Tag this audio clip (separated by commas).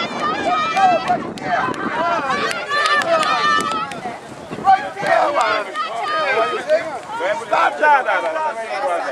Vehicle, Speech